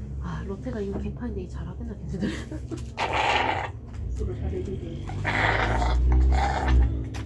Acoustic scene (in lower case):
cafe